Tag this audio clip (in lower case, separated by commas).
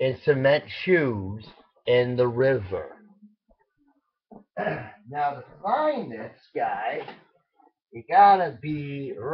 speech